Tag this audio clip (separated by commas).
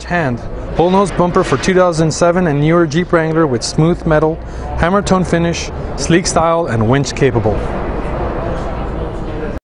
Speech